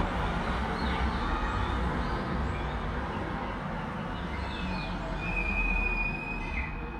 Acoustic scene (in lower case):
street